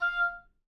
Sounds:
woodwind instrument, Musical instrument, Music

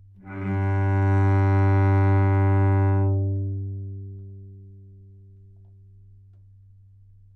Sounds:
Bowed string instrument, Music, Musical instrument

